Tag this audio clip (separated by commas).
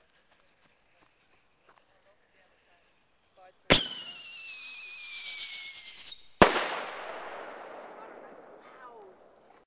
Speech